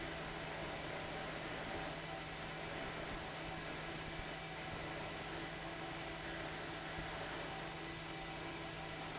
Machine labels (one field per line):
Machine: fan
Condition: abnormal